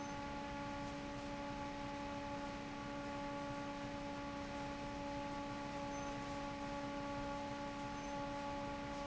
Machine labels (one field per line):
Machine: fan